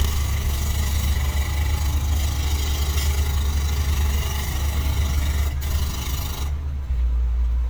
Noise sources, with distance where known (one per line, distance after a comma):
jackhammer, near